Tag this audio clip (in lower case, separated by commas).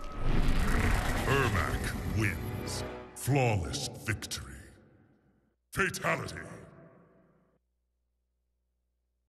music, speech